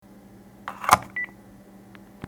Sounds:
alarm, telephone

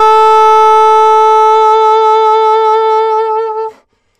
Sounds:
wind instrument, musical instrument, music

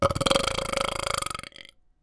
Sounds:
eructation

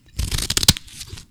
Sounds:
home sounds, scissors

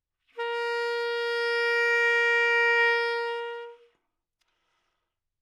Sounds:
music, musical instrument, woodwind instrument

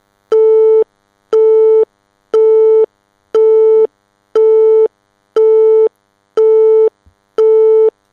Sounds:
alarm, telephone

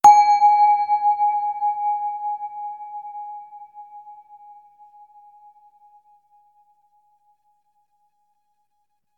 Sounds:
bell

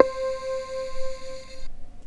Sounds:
musical instrument, keyboard (musical), music

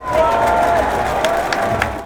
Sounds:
crowd, human group actions

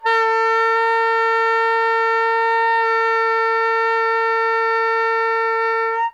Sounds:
music, woodwind instrument, musical instrument

